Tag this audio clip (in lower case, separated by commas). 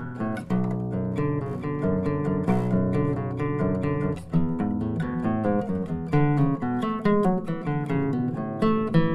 music, strum, musical instrument, guitar, plucked string instrument